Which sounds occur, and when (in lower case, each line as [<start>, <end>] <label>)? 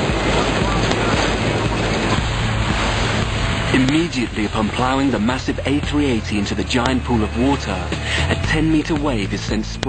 [0.00, 9.85] aircraft
[0.00, 9.85] music
[0.00, 9.85] water
[3.69, 7.80] man speaking
[7.95, 8.36] breathing
[8.39, 9.85] man speaking